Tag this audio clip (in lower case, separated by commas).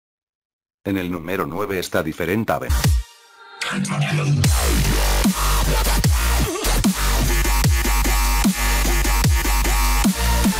music, dubstep, speech